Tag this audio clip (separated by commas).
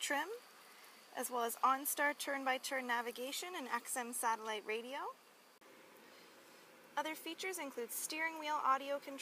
Speech